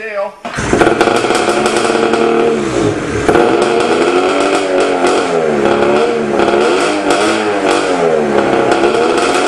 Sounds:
Vehicle, Speech, vroom, Medium engine (mid frequency)

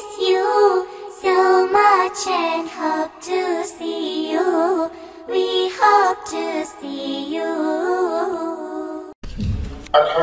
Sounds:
Music

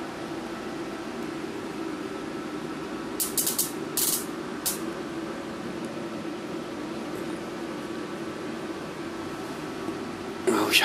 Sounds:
fox barking

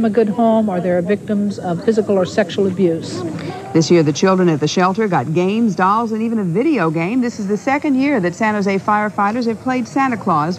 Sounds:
Speech

